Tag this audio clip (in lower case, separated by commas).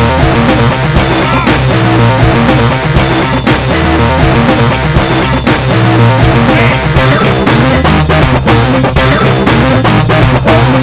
music